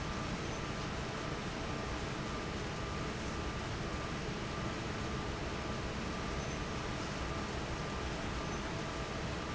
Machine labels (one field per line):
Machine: fan